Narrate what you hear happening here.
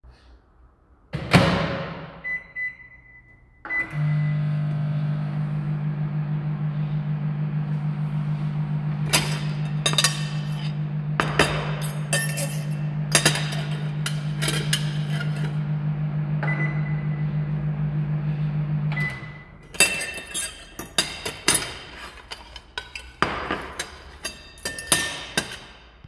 I put my tea into the microwave to heat it up andI started eating, after 15 seconds I turned off the microwave.